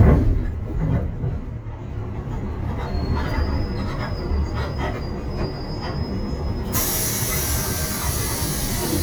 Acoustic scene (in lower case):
bus